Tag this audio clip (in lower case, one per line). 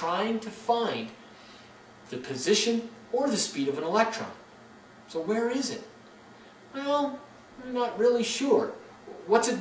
speech